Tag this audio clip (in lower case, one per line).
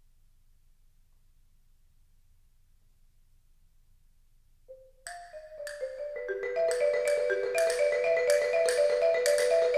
music
percussion